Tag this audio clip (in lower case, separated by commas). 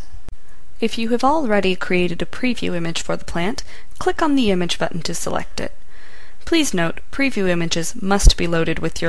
speech